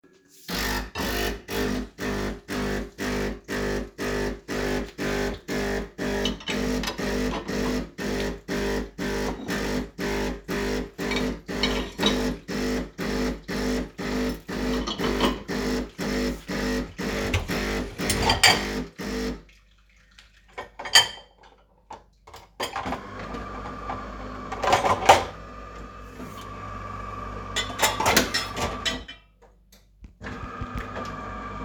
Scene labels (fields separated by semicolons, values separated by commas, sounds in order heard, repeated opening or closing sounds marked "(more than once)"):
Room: kitchen; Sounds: coffee machine, cutlery and dishes